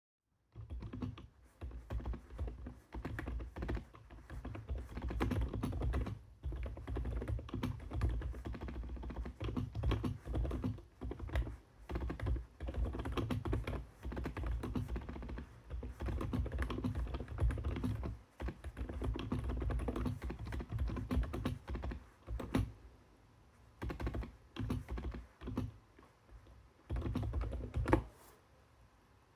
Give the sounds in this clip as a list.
keyboard typing